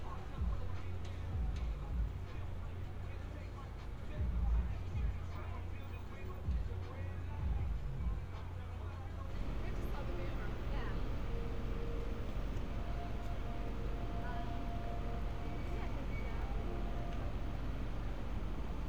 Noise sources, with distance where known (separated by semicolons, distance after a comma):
music from an unclear source, far; person or small group talking, far